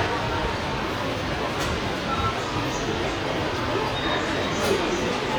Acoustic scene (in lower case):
subway station